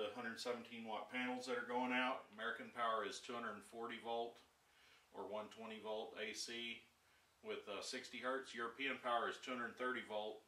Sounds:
Speech

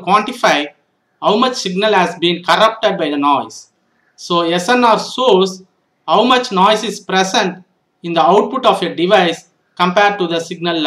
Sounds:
Speech

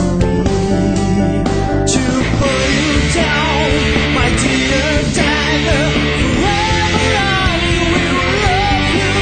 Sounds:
Music

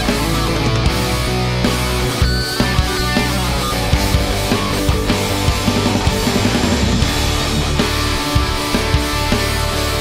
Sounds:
Music, Electric guitar, Guitar, Musical instrument

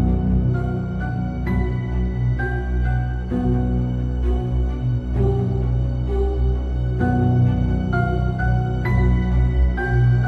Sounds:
Music, Keyboard (musical)

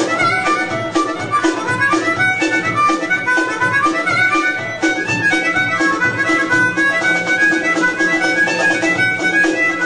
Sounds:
Harmonica, Wind instrument

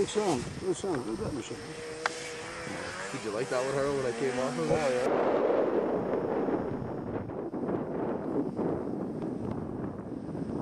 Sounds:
outside, rural or natural, Vehicle, Speech

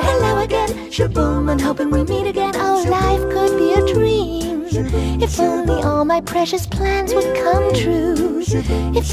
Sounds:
Music for children, Music

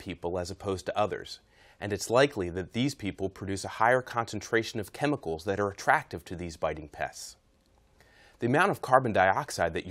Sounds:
Speech

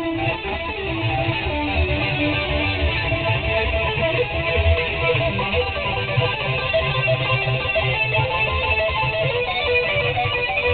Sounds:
Music, Musical instrument, Guitar, Plucked string instrument, Electric guitar

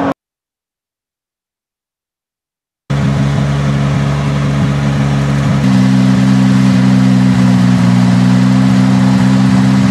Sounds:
Vehicle, Car, Medium engine (mid frequency), Engine

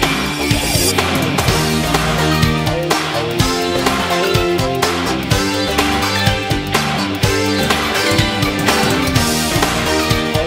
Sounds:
Music

